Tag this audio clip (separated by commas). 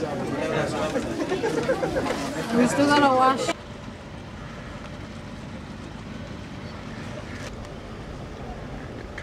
outside, rural or natural, Speech